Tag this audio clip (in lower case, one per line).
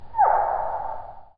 animal